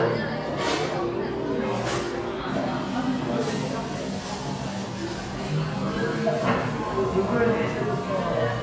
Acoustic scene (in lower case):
cafe